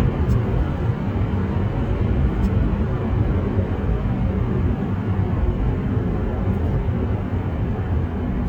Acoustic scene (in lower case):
car